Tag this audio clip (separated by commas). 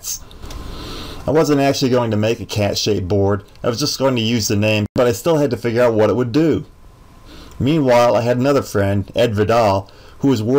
Speech